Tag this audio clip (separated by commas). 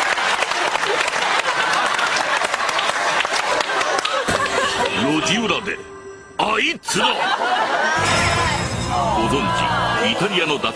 Music, Speech